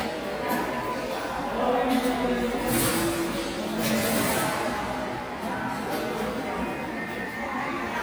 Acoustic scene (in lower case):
subway station